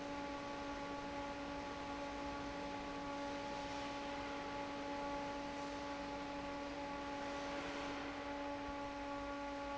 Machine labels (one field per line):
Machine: fan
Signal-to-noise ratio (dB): 6 dB